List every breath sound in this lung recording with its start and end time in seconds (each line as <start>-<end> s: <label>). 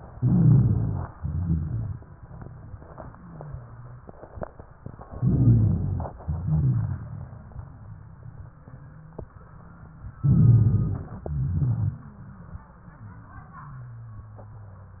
0.17-1.09 s: inhalation
0.17-1.09 s: rhonchi
1.16-2.15 s: exhalation
1.16-2.15 s: rhonchi
3.11-4.04 s: wheeze
5.13-6.13 s: inhalation
5.13-6.13 s: rhonchi
6.21-7.92 s: exhalation
6.21-7.92 s: crackles
10.23-11.31 s: inhalation
10.23-11.31 s: rhonchi
11.32-12.03 s: exhalation
11.32-12.03 s: rhonchi